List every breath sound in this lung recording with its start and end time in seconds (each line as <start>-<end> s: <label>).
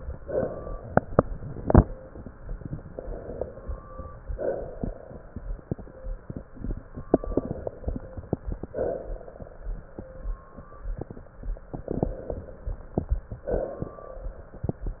0.00-1.60 s: exhalation
2.89-4.10 s: inhalation
4.34-5.70 s: exhalation
7.09-8.57 s: crackles
7.13-8.59 s: inhalation
8.72-10.08 s: exhalation
11.71-13.20 s: crackles
11.72-13.18 s: inhalation
13.44-14.80 s: exhalation